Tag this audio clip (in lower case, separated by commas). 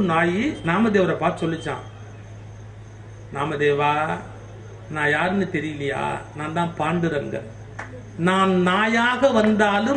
male speech, speech, monologue